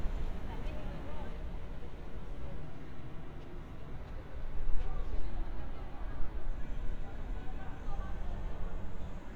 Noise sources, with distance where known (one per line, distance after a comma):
person or small group talking, far